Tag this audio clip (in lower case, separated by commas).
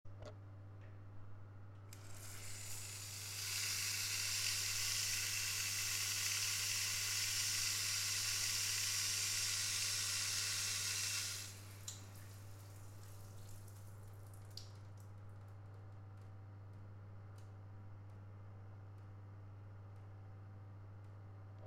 home sounds, bathtub (filling or washing)